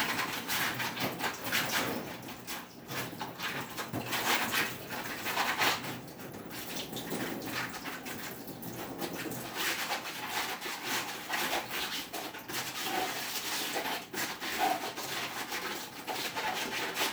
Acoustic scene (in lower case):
kitchen